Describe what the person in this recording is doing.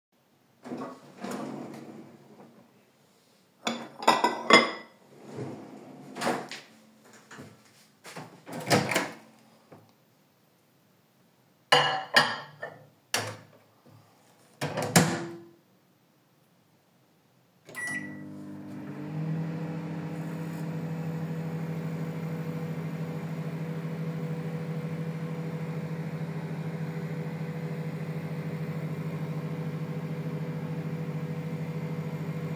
I grabbed a plate from the drawer, put a steak on it and stuffed it in the microwave for a minute.